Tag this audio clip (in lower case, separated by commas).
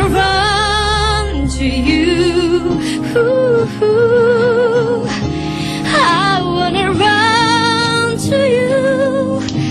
music, female singing